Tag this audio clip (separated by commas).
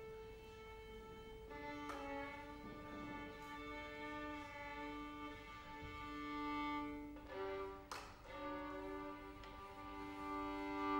Musical instrument, Music, fiddle